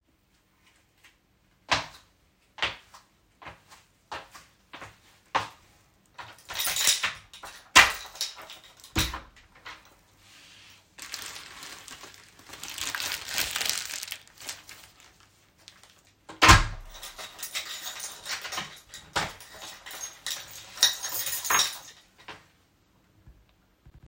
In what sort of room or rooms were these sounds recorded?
hallway